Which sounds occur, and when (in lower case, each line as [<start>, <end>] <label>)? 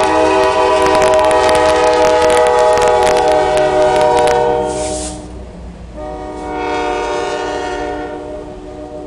[0.00, 5.31] train horn
[0.00, 9.05] train
[0.33, 0.44] generic impact sounds
[0.79, 1.23] generic impact sounds
[1.36, 1.50] generic impact sounds
[1.69, 2.40] generic impact sounds
[2.52, 2.80] generic impact sounds
[2.92, 3.28] generic impact sounds
[3.46, 3.55] generic impact sounds
[3.73, 3.97] generic impact sounds
[4.09, 4.30] generic impact sounds
[4.58, 5.17] hiss
[5.89, 9.05] train horn
[6.25, 6.46] hiss